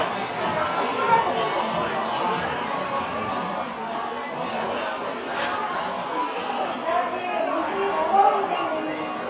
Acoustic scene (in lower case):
cafe